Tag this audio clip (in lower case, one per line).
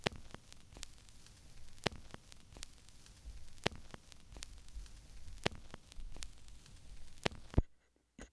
crackle